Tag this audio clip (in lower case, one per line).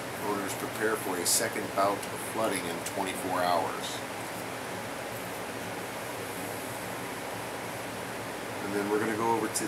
inside a small room
speech